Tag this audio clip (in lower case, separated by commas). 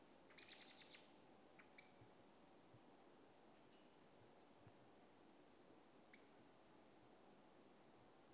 bird, animal, wild animals